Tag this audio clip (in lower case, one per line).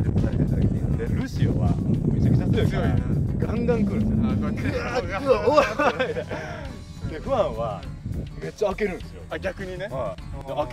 shot football